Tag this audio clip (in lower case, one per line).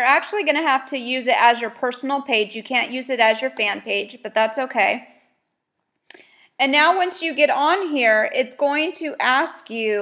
speech